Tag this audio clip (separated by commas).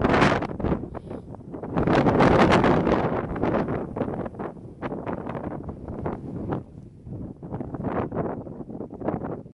Wind noise (microphone)